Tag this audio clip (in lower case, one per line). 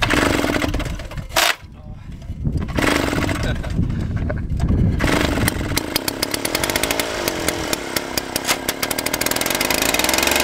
chainsaw